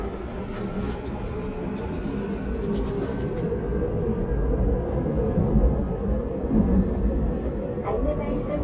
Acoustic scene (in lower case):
subway train